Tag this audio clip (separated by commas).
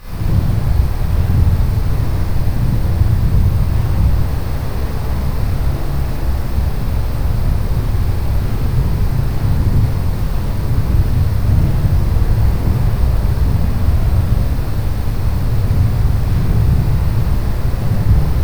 Wind